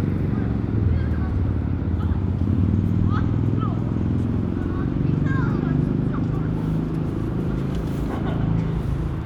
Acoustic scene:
residential area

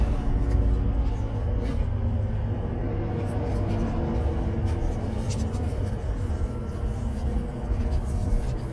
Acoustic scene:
car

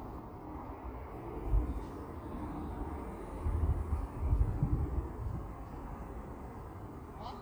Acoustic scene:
park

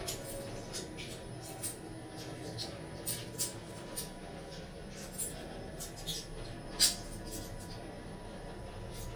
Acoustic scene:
elevator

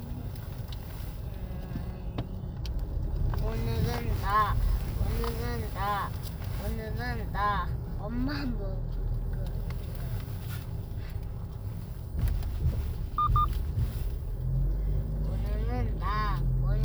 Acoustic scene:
car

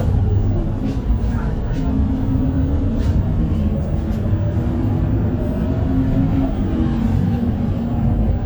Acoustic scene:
bus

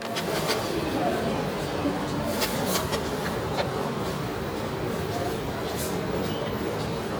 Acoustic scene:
subway station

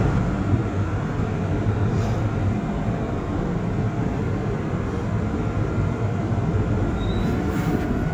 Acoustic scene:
subway train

